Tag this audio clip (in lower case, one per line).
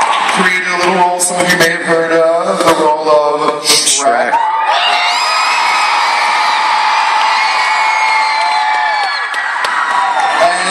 speech